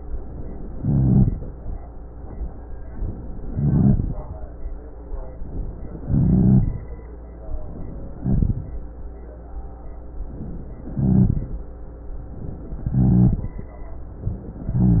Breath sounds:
0.74-1.33 s: inhalation
0.74-1.33 s: rhonchi
3.55-4.20 s: inhalation
3.55-4.20 s: rhonchi
6.07-6.83 s: inhalation
6.07-6.83 s: rhonchi
8.20-8.69 s: inhalation
8.20-8.69 s: rhonchi
10.97-11.52 s: inhalation
10.97-11.52 s: rhonchi
12.92-13.51 s: inhalation
12.92-13.51 s: rhonchi

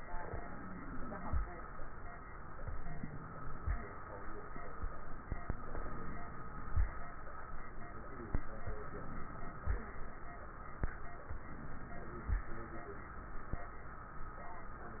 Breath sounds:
0.21-1.43 s: inhalation
0.21-1.43 s: crackles
2.61-3.71 s: inhalation
2.61-3.71 s: crackles
4.80-6.83 s: inhalation
4.80-6.83 s: crackles
8.66-9.76 s: inhalation
8.66-9.76 s: crackles
11.34-12.44 s: inhalation
11.34-12.44 s: crackles

